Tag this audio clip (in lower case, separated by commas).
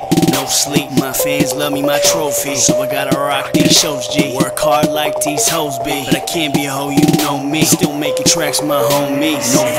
music